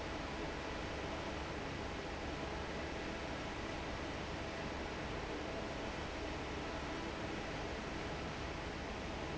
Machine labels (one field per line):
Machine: fan